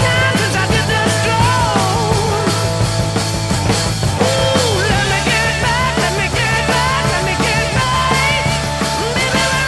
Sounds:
rock and roll, music

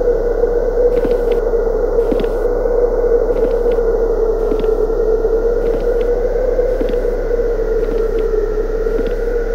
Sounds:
basketball bounce

